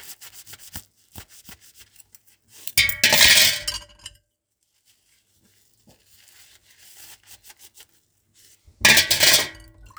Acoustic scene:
kitchen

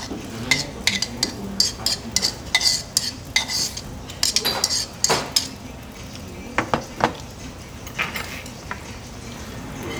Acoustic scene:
restaurant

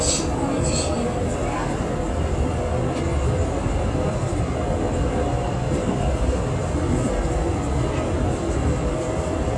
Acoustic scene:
subway train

